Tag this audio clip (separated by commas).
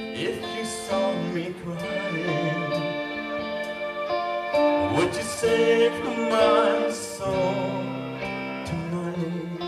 Male singing, Music